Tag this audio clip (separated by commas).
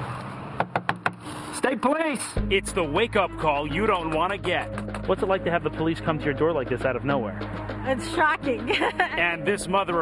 Speech, Music